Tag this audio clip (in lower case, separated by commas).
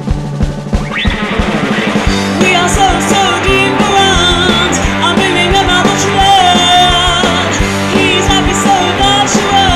rock music, music